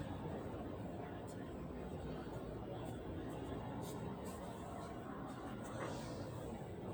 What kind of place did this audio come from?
residential area